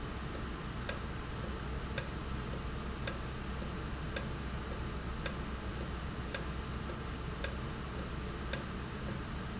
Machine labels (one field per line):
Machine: valve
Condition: normal